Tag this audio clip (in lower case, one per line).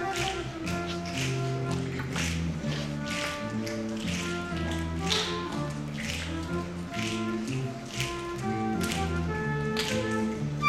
music
flute